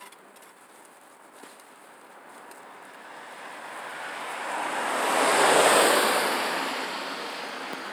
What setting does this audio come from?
street